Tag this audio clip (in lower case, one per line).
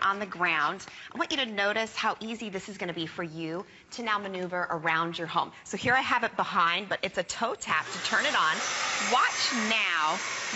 speech